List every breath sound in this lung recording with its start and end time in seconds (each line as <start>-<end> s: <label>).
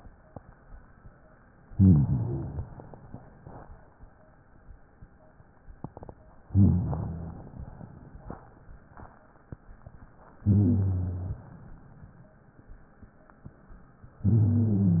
1.69-2.75 s: inhalation
1.69-2.75 s: wheeze
6.46-7.53 s: inhalation
6.46-7.53 s: wheeze
7.53-8.31 s: exhalation
10.42-11.43 s: inhalation
10.42-11.43 s: wheeze
14.21-15.00 s: inhalation
14.21-15.00 s: wheeze